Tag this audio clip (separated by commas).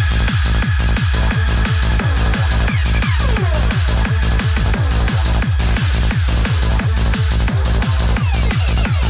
Music, Disco